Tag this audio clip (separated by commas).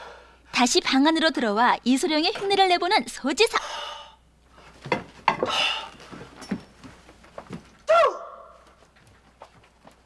Speech